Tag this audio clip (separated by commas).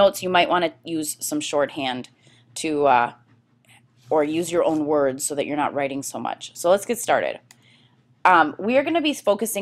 Speech